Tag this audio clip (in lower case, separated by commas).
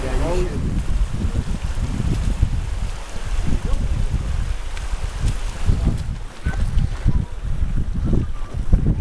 speech, rustling leaves, outside, rural or natural